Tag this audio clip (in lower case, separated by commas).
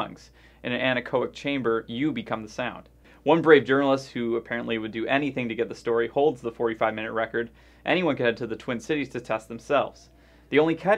speech